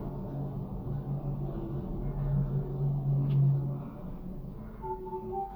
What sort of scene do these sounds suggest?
elevator